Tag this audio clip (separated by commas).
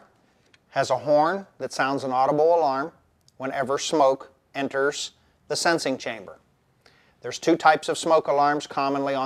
Speech